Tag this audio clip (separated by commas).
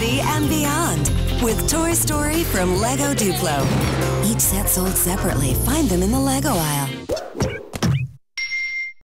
Music, Speech